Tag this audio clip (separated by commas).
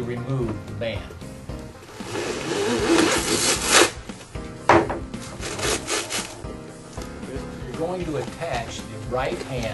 Speech, Music